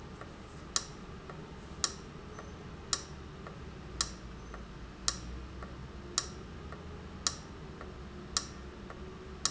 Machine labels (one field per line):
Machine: valve